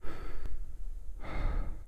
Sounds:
Breathing, Respiratory sounds

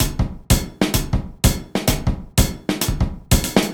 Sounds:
Musical instrument, Percussion, Music, Drum kit

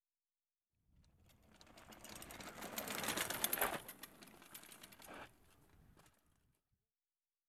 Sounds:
Vehicle, Bicycle

